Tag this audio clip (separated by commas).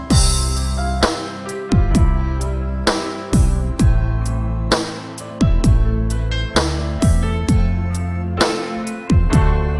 Music